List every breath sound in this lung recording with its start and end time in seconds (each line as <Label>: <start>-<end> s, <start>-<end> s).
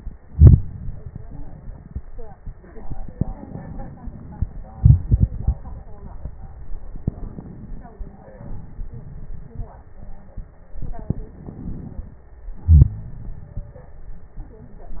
Inhalation: 3.27-3.99 s, 6.90-7.95 s, 11.36-12.21 s
Exhalation: 4.72-5.66 s, 8.43-9.72 s, 12.55-13.74 s